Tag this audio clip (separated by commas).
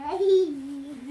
Laughter, Human voice